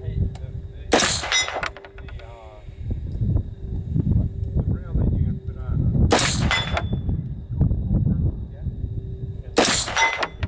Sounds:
speech, outside, rural or natural

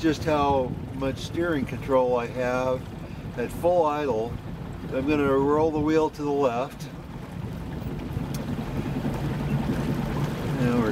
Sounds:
boat, speedboat

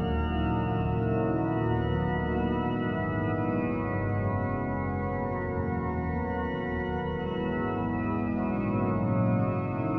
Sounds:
keyboard (musical), musical instrument, music

